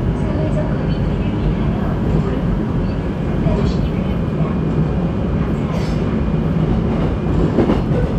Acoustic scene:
subway train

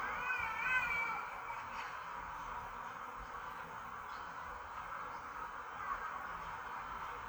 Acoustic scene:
park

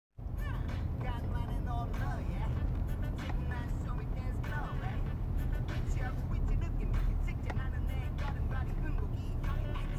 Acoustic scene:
car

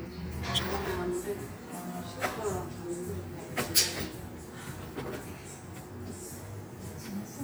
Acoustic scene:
cafe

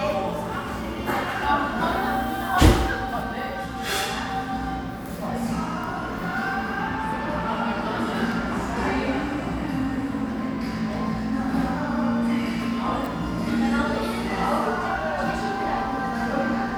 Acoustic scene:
cafe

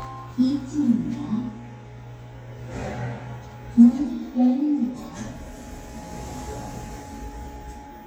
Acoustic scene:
elevator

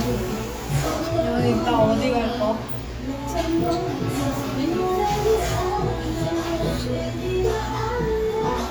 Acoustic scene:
cafe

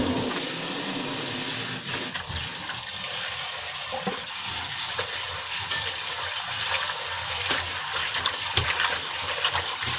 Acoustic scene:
kitchen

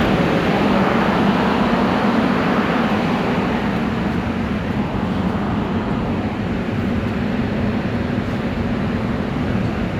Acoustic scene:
subway station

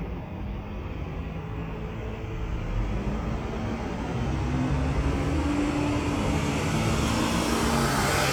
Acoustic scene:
street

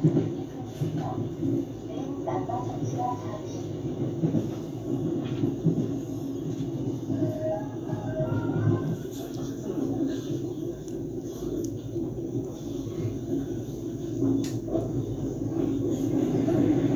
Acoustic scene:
subway train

